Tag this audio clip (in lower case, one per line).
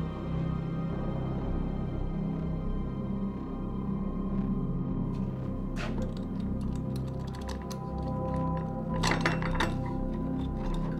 scary music
inside a small room
music